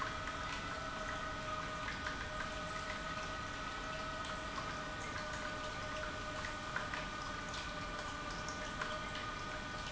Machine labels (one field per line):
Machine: pump